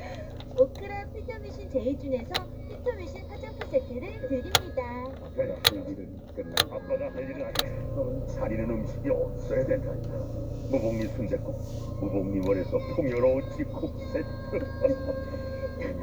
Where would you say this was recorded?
in a car